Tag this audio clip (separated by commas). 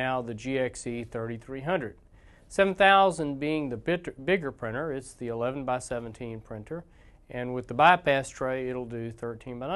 Speech